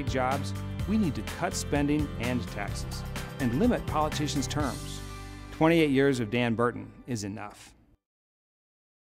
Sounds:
Music, Speech

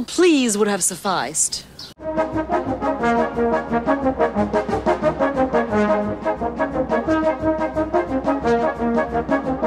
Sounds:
Music, outside, rural or natural, Speech

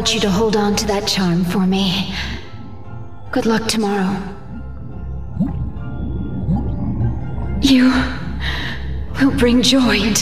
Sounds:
Music, Speech

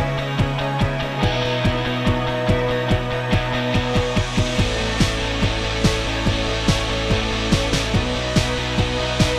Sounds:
Music

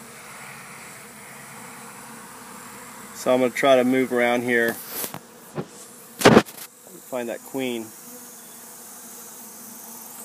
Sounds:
bee or wasp, Speech

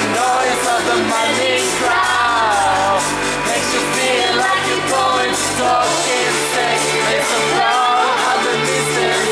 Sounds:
Music

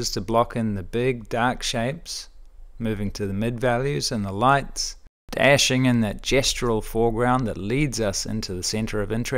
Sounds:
Speech

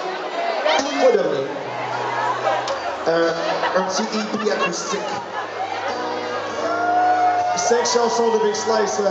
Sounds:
Music, Crowd

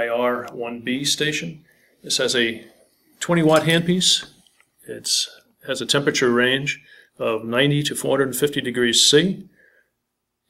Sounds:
Speech

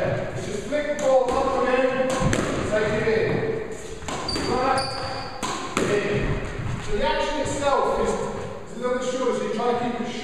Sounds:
playing squash

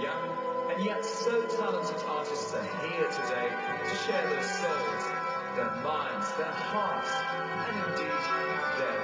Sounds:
Music, Speech

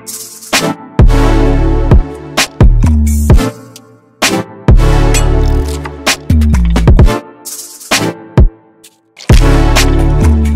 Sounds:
Music

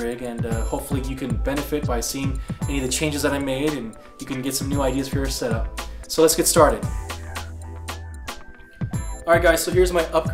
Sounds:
Music, Speech

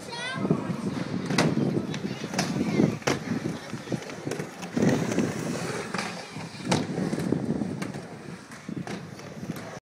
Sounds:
Speech

